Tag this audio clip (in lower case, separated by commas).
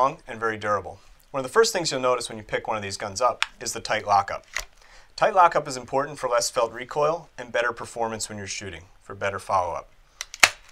speech